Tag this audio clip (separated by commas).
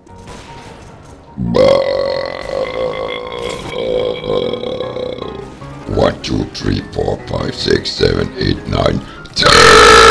people burping